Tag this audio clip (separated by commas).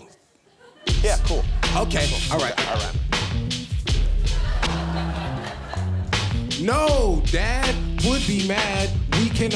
rapping